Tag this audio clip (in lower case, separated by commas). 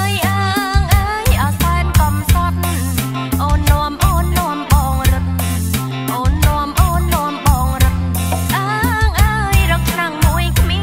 music, traditional music